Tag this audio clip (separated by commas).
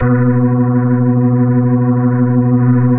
Music, Organ, Keyboard (musical), Musical instrument